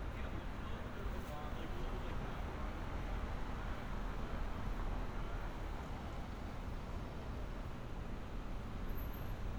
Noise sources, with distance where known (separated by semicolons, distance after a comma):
person or small group talking